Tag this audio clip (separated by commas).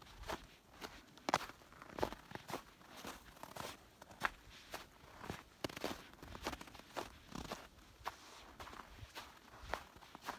footsteps on snow